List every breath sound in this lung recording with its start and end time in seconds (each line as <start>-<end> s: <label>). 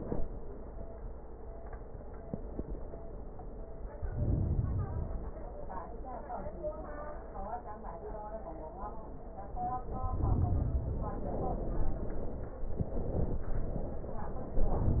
3.87-5.37 s: inhalation